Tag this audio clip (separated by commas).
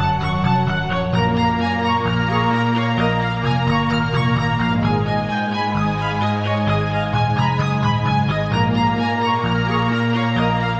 Theme music, Music